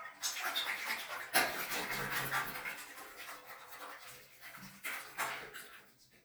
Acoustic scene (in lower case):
restroom